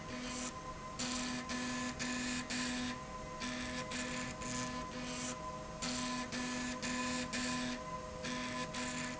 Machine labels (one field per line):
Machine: slide rail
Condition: abnormal